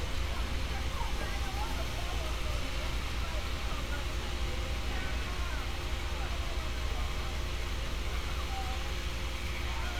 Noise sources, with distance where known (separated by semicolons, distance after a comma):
unidentified human voice, far